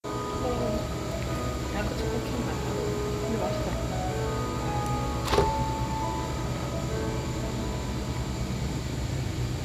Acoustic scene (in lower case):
cafe